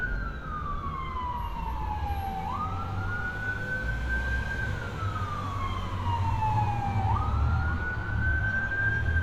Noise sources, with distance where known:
siren

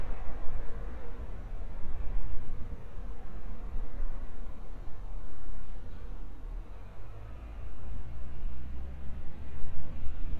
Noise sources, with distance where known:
engine of unclear size, far

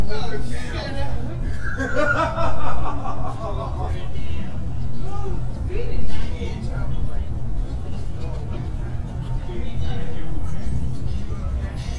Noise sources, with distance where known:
person or small group talking, near

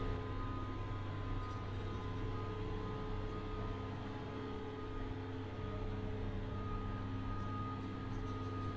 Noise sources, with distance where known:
unidentified alert signal

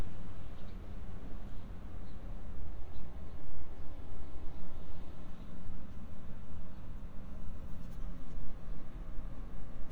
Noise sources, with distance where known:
background noise

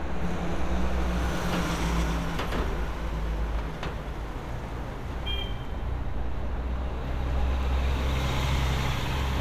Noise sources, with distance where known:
large-sounding engine, near; car horn, near

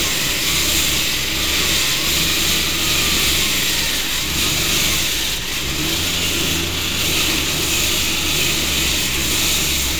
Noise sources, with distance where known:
unidentified powered saw, near

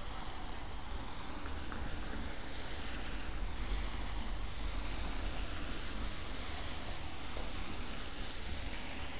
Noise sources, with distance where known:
engine of unclear size, near

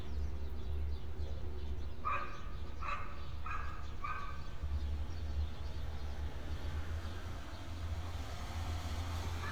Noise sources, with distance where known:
dog barking or whining

